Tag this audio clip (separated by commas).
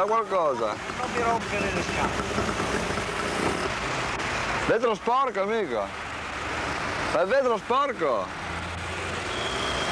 Speech